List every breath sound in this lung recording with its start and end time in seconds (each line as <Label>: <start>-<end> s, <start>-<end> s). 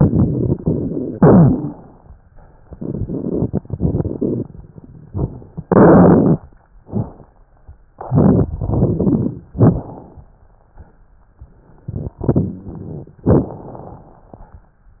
Inhalation: 1.12-1.99 s, 5.64-6.43 s, 9.56-10.19 s, 13.24-14.19 s
Exhalation: 0.00-1.10 s, 2.64-4.48 s, 7.93-9.45 s, 12.22-13.17 s
Crackles: 0.00-1.10 s, 1.12-1.99 s, 2.64-4.48 s, 5.64-6.43 s, 7.93-9.45 s, 9.56-9.94 s, 12.22-12.71 s, 13.24-13.76 s